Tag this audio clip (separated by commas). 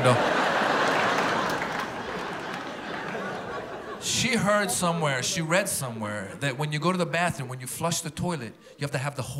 Speech, Laughter